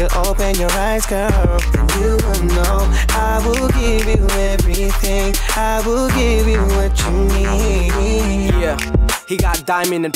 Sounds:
music

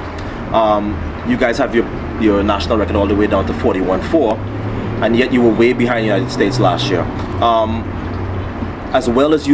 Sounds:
speech

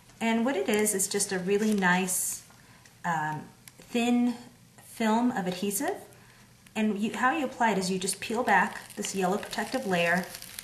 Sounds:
speech

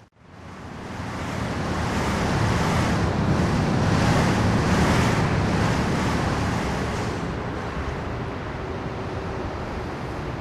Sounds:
vehicle
car

